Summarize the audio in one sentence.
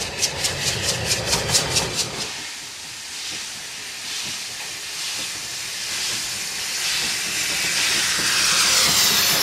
A train is chugging by as steam is let out of the exhaust